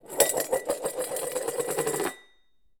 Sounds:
Domestic sounds, dishes, pots and pans

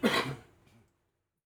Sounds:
Cough, Respiratory sounds

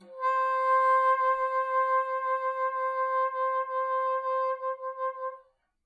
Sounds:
Musical instrument, Wind instrument, Music

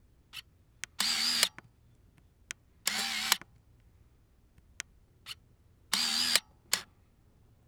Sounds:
Mechanisms, Camera

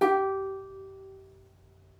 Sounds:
Plucked string instrument, Music, Musical instrument

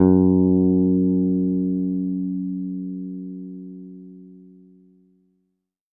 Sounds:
Music, Musical instrument, Plucked string instrument, Guitar, Bass guitar

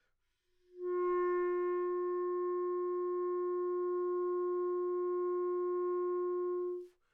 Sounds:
Wind instrument, Music, Musical instrument

